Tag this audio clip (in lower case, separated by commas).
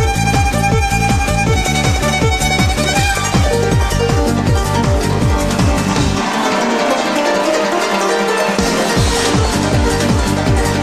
violin, music, musical instrument